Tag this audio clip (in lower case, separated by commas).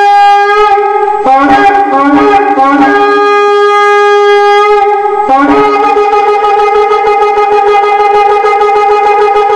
woodwind instrument, shofar